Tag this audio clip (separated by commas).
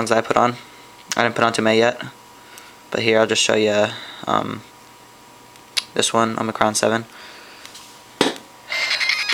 Speech, Tap